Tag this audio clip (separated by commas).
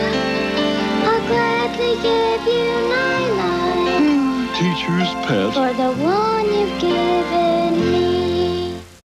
Speech, Music